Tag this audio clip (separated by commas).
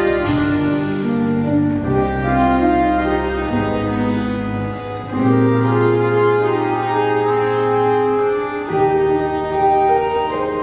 Musical instrument, Orchestra, Classical music, Music, Percussion, Accordion